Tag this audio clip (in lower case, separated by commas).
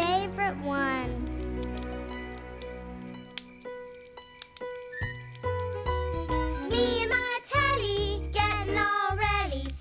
child speech